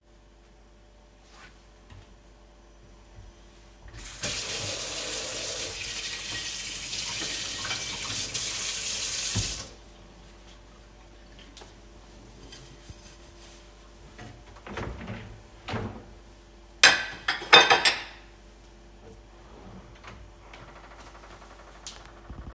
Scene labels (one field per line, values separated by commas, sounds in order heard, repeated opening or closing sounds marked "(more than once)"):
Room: kitchen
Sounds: running water, wardrobe or drawer, cutlery and dishes